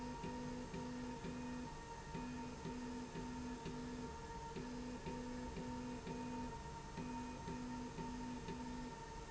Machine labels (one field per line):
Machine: slide rail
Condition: normal